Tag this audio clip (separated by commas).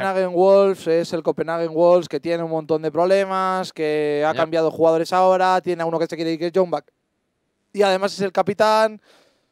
Speech